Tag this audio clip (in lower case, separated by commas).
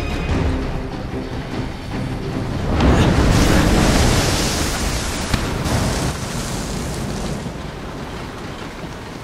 music